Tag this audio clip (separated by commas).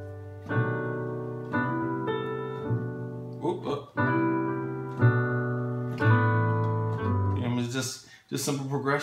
Music, Keyboard (musical), Musical instrument